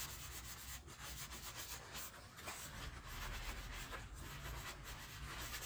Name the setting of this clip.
kitchen